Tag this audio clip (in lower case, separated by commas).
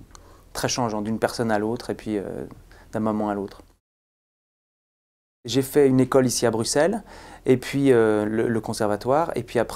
speech